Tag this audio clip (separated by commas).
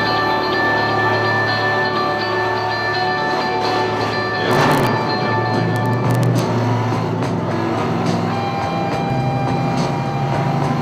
Car, Music